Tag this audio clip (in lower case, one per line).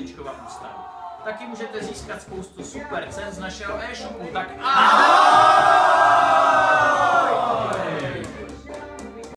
tap
speech
music